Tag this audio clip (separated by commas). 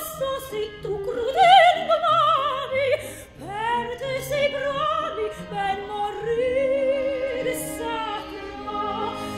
Singing, Music, Opera, Orchestra